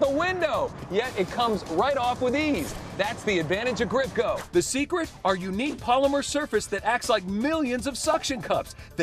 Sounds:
speech, music

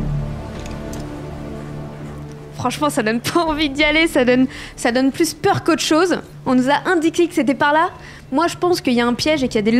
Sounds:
speech, music

